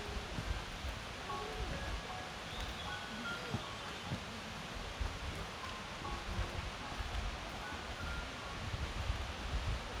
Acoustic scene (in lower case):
park